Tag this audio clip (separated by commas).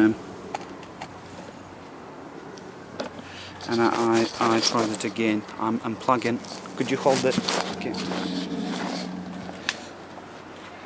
Speech